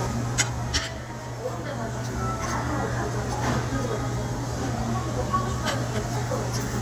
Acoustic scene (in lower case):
restaurant